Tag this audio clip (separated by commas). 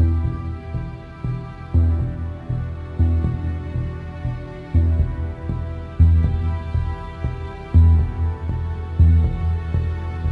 Background music, Music